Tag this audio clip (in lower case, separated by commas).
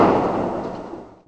fireworks, explosion